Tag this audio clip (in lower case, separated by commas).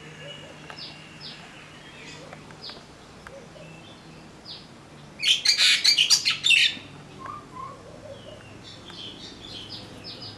mynah bird singing